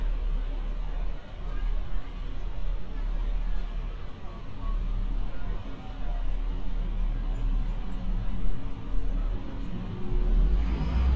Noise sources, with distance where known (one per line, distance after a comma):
person or small group talking